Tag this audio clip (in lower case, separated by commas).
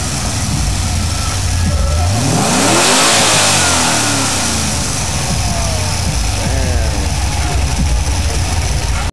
medium engine (mid frequency), engine, vehicle, vroom